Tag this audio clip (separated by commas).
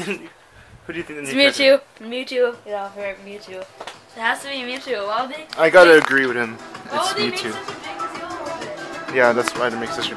Speech, Music